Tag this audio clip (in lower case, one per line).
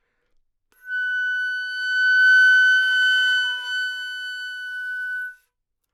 musical instrument
wind instrument
music